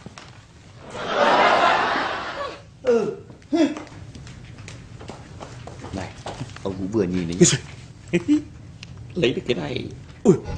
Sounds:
speech

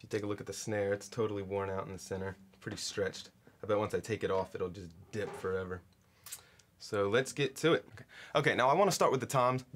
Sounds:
speech

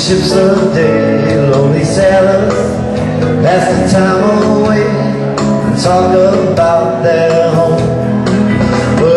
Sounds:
music

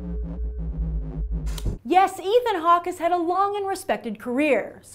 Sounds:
music
speech

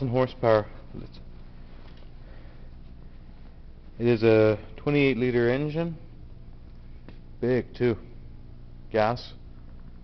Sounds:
speech

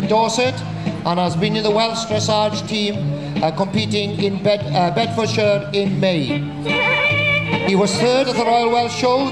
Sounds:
music
speech

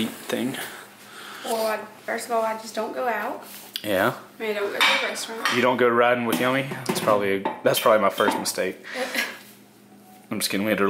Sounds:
speech
inside a small room

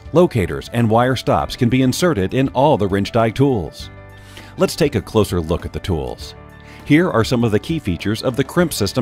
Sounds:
speech
music

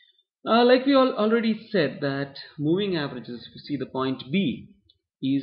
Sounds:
speech

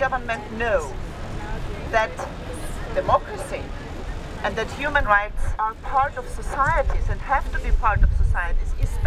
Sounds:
speech

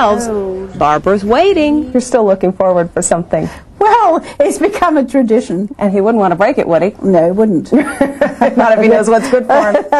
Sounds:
inside a small room
speech

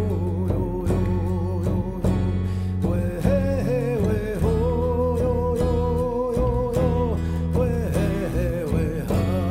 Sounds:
music

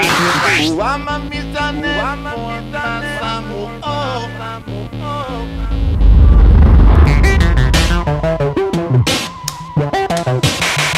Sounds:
synthesizer
music

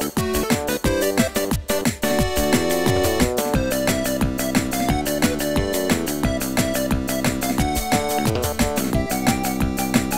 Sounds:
music
soundtrack music

